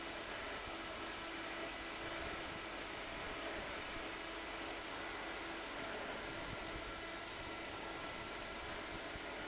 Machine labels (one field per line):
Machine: fan